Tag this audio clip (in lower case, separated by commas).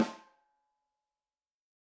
drum, percussion, snare drum, music, musical instrument